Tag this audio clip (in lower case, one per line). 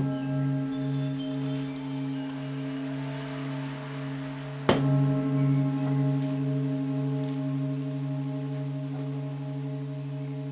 singing bowl